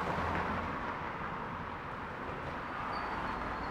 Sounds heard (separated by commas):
car, motorcycle brakes, car wheels rolling, motorcycle